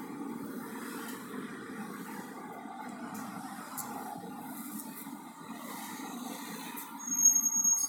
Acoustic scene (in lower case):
street